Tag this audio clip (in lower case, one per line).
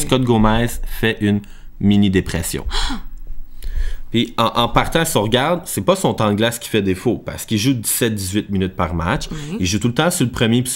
speech